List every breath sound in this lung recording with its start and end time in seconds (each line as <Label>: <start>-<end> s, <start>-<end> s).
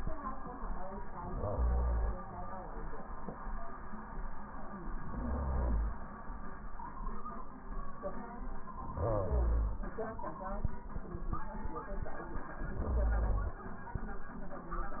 Inhalation: 1.17-2.22 s, 5.03-6.02 s, 8.87-9.87 s, 12.67-13.66 s